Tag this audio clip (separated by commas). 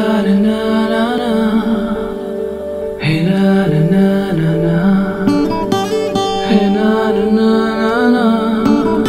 Music